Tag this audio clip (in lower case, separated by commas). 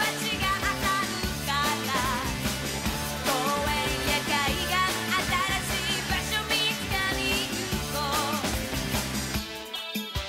music